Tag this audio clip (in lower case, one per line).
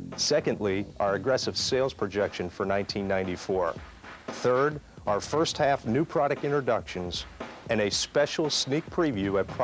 speech
music